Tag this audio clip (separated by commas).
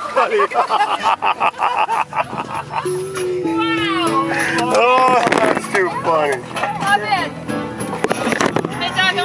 Music, Speech